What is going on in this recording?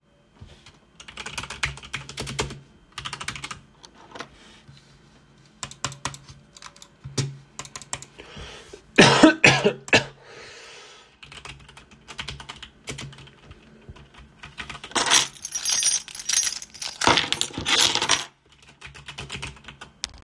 I type on my keyboar tap my mouse cough and pick up my keys